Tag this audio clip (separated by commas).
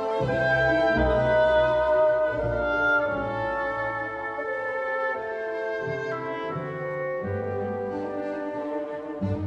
Music